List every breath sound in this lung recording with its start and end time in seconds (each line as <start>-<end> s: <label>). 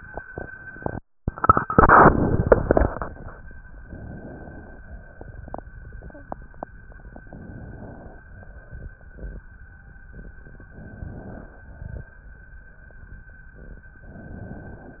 3.88-4.78 s: inhalation
4.78-5.62 s: exhalation
7.27-8.19 s: inhalation
8.19-9.44 s: exhalation
10.72-11.63 s: inhalation
11.63-12.37 s: exhalation
14.05-15.00 s: inhalation